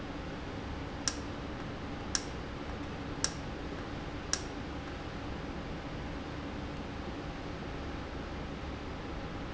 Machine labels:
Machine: valve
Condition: normal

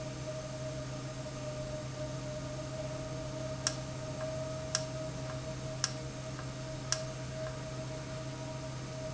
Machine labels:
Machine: valve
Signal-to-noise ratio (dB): -6 dB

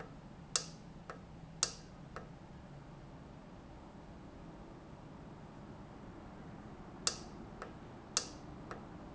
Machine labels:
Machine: valve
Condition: normal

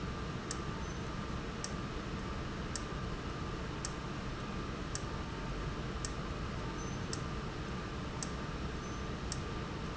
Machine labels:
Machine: valve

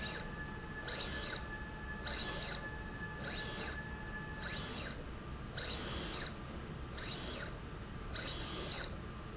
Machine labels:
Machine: slide rail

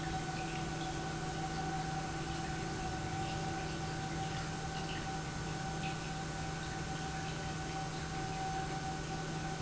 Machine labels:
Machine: pump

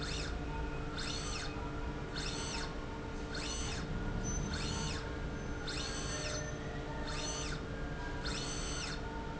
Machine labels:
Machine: slide rail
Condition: normal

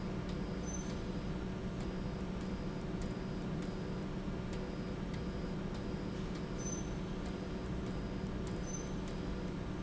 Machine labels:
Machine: slide rail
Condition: abnormal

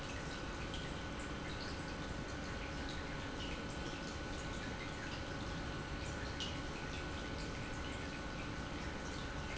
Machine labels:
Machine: pump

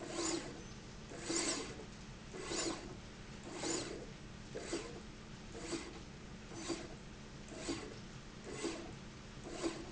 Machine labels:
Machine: slide rail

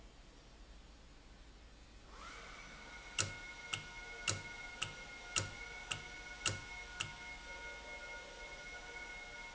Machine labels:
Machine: valve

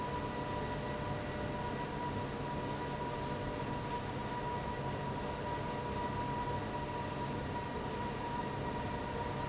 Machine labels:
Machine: fan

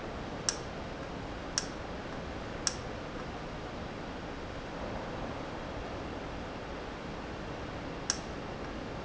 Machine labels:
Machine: valve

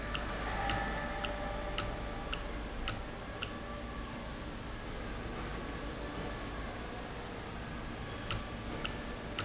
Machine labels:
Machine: valve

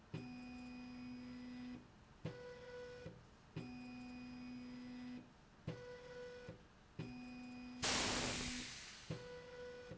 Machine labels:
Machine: slide rail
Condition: normal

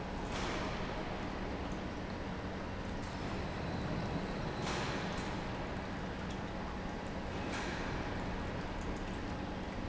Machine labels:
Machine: pump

